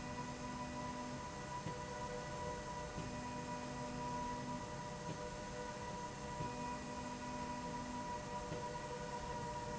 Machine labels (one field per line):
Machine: slide rail